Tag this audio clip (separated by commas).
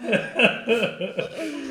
Human voice, Laughter